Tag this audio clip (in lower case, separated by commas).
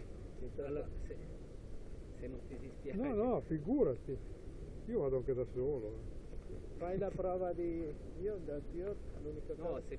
speech